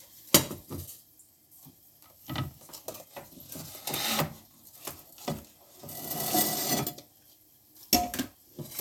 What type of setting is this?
kitchen